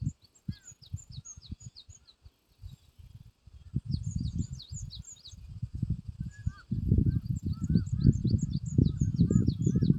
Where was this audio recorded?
in a park